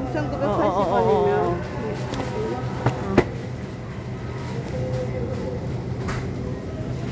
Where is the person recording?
in a crowded indoor space